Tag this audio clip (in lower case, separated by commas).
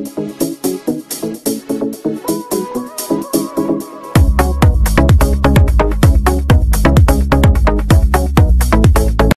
music